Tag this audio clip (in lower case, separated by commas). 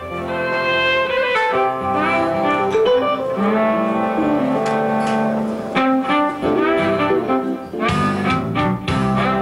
music